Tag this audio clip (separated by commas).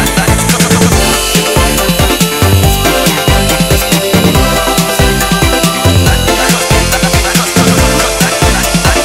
Music